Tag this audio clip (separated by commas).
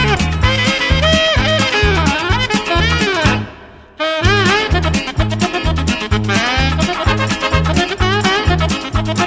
Music